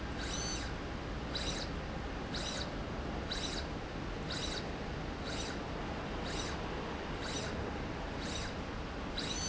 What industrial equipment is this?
slide rail